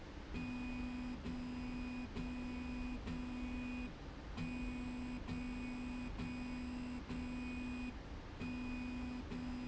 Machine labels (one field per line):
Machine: slide rail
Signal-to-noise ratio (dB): 6 dB